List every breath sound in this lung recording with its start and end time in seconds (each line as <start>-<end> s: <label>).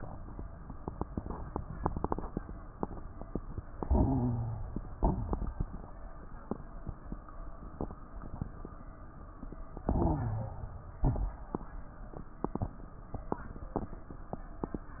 3.83-4.82 s: inhalation
3.83-4.82 s: wheeze
5.01-5.69 s: exhalation
5.01-5.69 s: crackles
9.85-10.70 s: inhalation
9.85-10.70 s: wheeze
11.02-11.63 s: exhalation
11.02-11.63 s: crackles